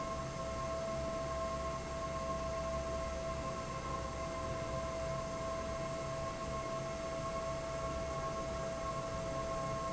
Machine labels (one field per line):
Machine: fan